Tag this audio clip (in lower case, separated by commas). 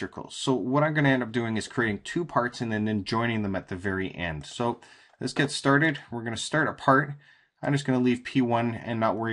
speech